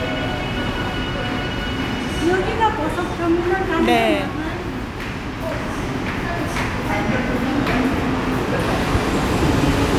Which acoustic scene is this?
subway station